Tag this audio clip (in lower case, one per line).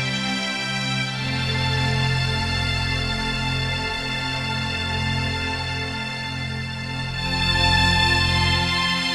music